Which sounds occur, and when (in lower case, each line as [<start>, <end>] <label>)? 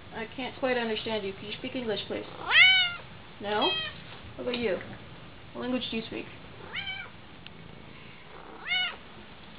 [0.00, 9.55] mechanisms
[0.12, 0.24] woman speaking
[0.27, 0.35] clicking
[0.36, 0.49] woman speaking
[0.60, 2.23] woman speaking
[0.93, 2.37] purr
[2.39, 2.98] meow
[3.37, 3.68] woman speaking
[3.58, 3.92] meow
[3.76, 4.11] purr
[4.09, 4.17] tick
[4.35, 4.87] woman speaking
[4.49, 4.58] generic impact sounds
[4.78, 4.95] clicking
[5.55, 6.24] woman speaking
[6.29, 6.65] purr
[6.62, 7.11] meow
[7.41, 7.50] clicking
[7.50, 8.51] purr
[8.58, 8.95] meow
[9.16, 9.25] tap
[9.40, 9.55] tick